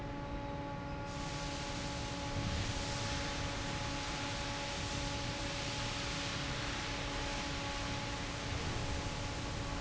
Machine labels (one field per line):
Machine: fan